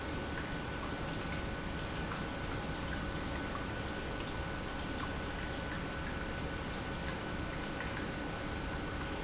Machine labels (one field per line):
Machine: pump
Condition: normal